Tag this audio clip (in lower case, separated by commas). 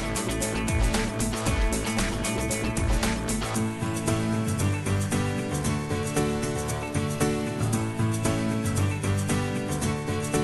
electronica, music